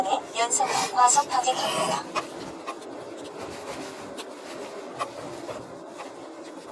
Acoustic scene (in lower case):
car